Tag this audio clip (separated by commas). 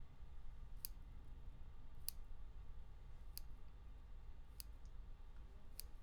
Clock, Tick, Mechanisms